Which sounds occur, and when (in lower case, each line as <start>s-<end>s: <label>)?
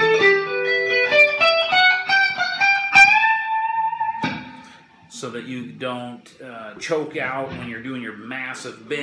0.0s-9.0s: music
5.1s-6.1s: male speech
6.8s-9.0s: male speech